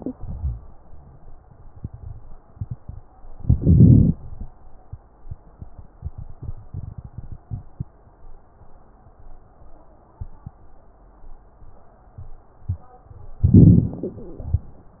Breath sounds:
Inhalation: 3.40-4.18 s, 13.44-14.06 s

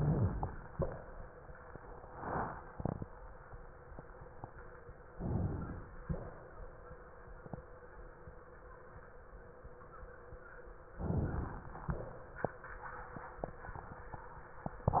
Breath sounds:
Inhalation: 5.10-6.03 s, 10.90-11.83 s
Exhalation: 6.03-6.56 s, 11.83-12.37 s

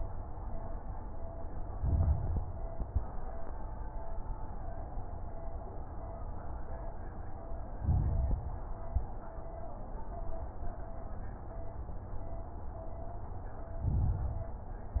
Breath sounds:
Inhalation: 1.73-2.43 s, 7.75-8.45 s, 13.81-14.65 s
Exhalation: 2.77-3.11 s, 8.84-9.18 s
Crackles: 1.73-2.43 s, 2.77-3.11 s, 7.75-8.45 s, 8.84-9.18 s, 13.81-14.65 s

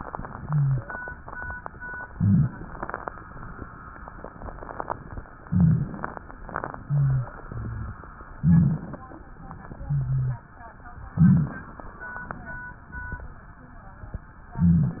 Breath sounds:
Inhalation: 2.11-2.77 s, 5.45-6.22 s, 8.39-9.11 s, 11.12-11.94 s
Exhalation: 0.19-0.89 s, 6.79-8.03 s, 9.87-10.46 s
Rhonchi: 0.34-0.89 s, 2.11-2.51 s, 6.79-7.36 s, 7.48-8.05 s, 9.87-10.46 s
Crackles: 5.45-6.22 s, 8.39-8.98 s, 11.12-11.63 s

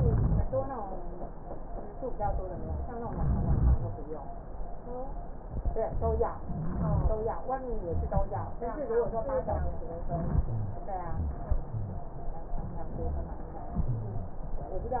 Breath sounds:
Inhalation: 3.15-3.85 s, 6.49-7.19 s, 10.05-10.49 s
Exhalation: 10.49-10.87 s
Rhonchi: 0.00-0.40 s, 3.15-3.83 s, 5.86-6.34 s, 6.49-7.12 s, 9.47-9.94 s, 10.05-10.49 s, 11.71-12.09 s

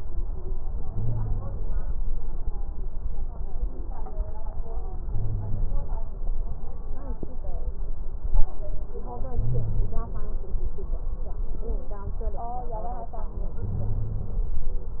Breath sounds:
Inhalation: 0.85-1.63 s, 5.09-5.79 s, 9.32-10.01 s, 13.59-14.48 s
Wheeze: 0.85-1.63 s, 5.09-5.79 s, 9.32-10.01 s, 13.59-14.48 s

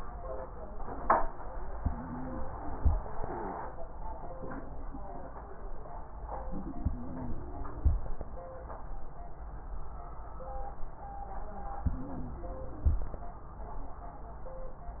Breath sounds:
Inhalation: 1.81-2.89 s, 6.82-7.90 s, 11.90-12.99 s
Wheeze: 1.81-2.89 s, 6.82-7.90 s, 11.90-12.99 s

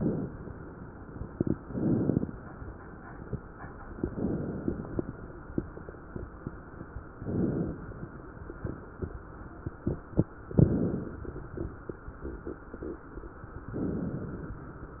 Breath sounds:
Inhalation: 1.28-2.44 s, 3.86-5.42 s, 7.13-8.85 s, 10.43-12.19 s
Crackles: 1.28-2.44 s, 3.86-5.42 s, 7.13-8.85 s, 10.43-12.19 s

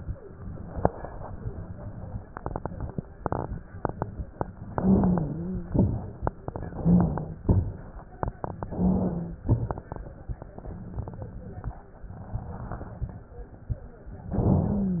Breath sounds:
Inhalation: 4.73-5.76 s, 6.43-7.46 s, 8.61-9.42 s, 14.33-15.00 s
Exhalation: 5.79-6.39 s, 7.43-8.24 s, 9.44-10.25 s
Wheeze: 4.73-5.76 s, 6.43-7.46 s, 8.61-9.42 s, 14.33-15.00 s
Crackles: 5.79-6.39 s, 7.43-8.24 s, 9.44-10.25 s

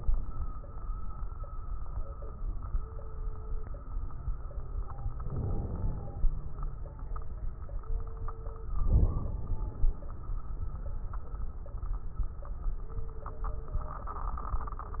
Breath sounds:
Inhalation: 5.28-6.32 s, 8.86-10.06 s

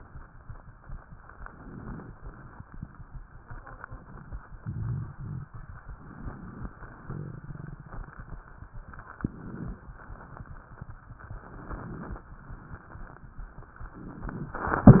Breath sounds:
Inhalation: 1.14-2.11 s, 5.78-6.74 s, 9.11-9.91 s, 11.31-12.26 s
Exhalation: 2.17-3.11 s, 6.76-8.18 s, 9.95-10.91 s, 12.30-13.26 s

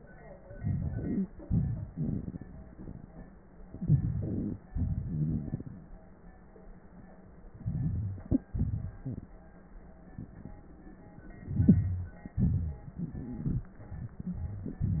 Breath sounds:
Inhalation: 0.41-1.41 s, 3.63-4.66 s, 7.49-8.47 s, 11.33-12.34 s
Exhalation: 1.40-2.53 s, 4.67-6.16 s, 8.48-9.54 s, 12.33-13.79 s
Wheeze: 1.87-2.34 s, 3.74-4.59 s, 5.04-5.66 s, 9.02-9.30 s, 14.26-14.78 s
Stridor: 12.93-13.79 s
Crackles: 0.41-1.41 s, 7.49-8.47 s, 11.33-12.34 s

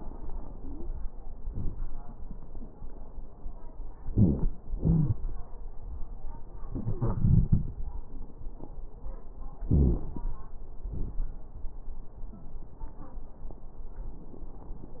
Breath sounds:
Inhalation: 4.09-4.54 s, 9.69-10.25 s
Exhalation: 4.75-5.21 s, 10.89-11.26 s
Wheeze: 0.53-0.91 s, 4.07-4.52 s, 4.75-5.21 s, 9.69-10.05 s

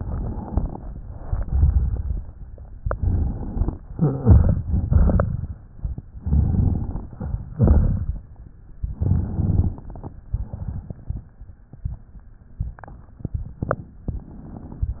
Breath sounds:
Inhalation: 2.90-3.80 s, 6.15-7.05 s, 8.97-10.16 s
Exhalation: 0.96-2.32 s, 3.93-5.54 s, 7.54-8.14 s, 10.31-11.30 s
Wheeze: 3.96-4.60 s

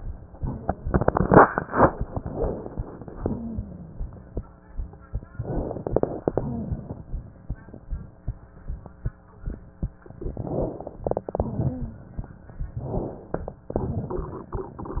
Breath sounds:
Inhalation: 5.39-6.30 s, 10.17-10.97 s, 12.86-13.64 s
Exhalation: 6.34-7.55 s, 11.06-12.24 s, 13.72-15.00 s

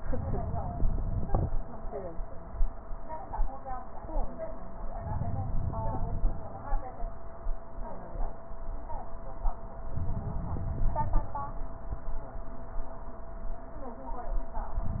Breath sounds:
Inhalation: 4.96-6.46 s, 9.89-11.39 s

